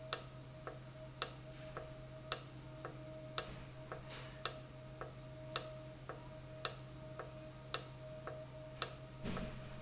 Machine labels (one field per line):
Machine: valve